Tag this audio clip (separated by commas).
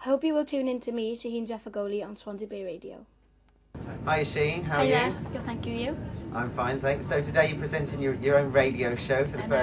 Speech